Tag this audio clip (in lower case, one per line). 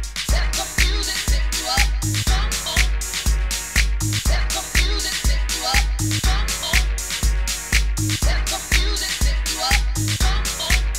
hip hop music
disco
music